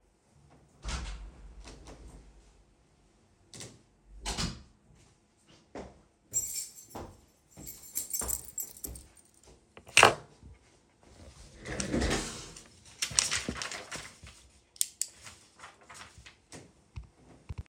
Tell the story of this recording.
I enter the house walk all the way down my hall and leave the keys at their supposed place.